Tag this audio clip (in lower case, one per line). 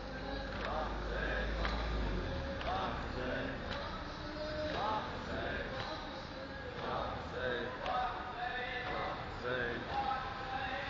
outside, urban or man-made
speech